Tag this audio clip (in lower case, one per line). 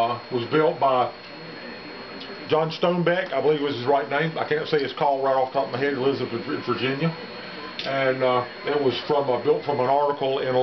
speech